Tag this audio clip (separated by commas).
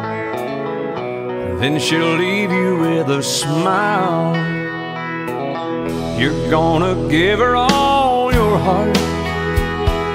Singing, Music, Keyboard (musical)